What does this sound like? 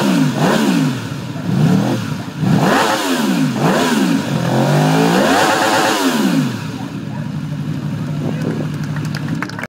Engine revving with distant murmuring followed by applause